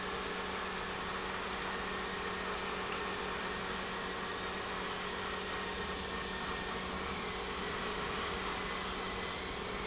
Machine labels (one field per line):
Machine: pump